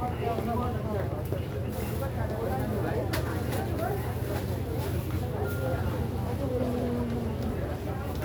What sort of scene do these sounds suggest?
crowded indoor space